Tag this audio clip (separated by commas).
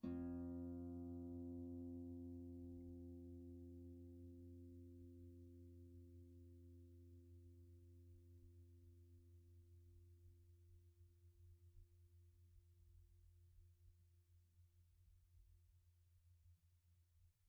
Music, Musical instrument, Harp